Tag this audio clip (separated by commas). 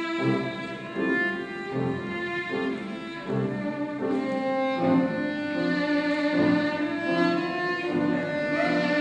Musical instrument, Music, Violin